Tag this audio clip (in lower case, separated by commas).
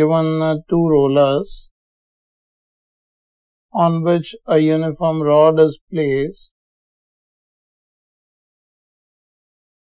speech